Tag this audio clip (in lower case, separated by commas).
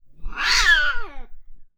cat, animal, pets, meow